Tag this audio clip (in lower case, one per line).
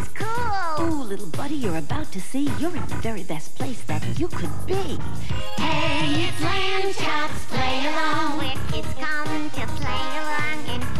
music